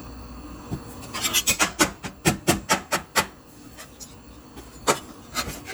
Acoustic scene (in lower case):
kitchen